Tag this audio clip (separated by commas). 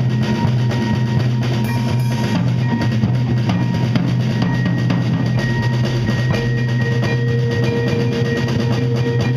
Music, Bass drum, Musical instrument, Percussion, Drum kit, Marimba, Cymbal, Drum